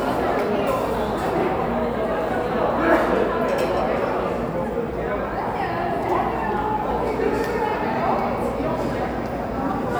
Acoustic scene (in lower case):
cafe